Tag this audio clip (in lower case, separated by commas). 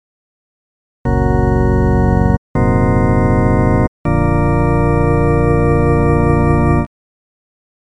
music, keyboard (musical), musical instrument, organ